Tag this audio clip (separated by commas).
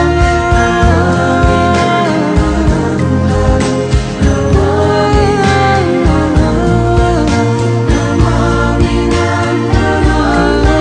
Music